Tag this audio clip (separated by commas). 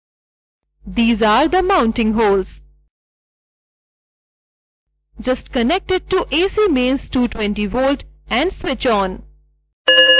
Speech